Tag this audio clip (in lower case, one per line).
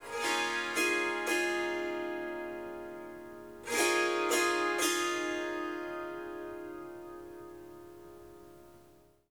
music
musical instrument
harp